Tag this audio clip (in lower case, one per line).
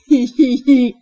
laughter
human voice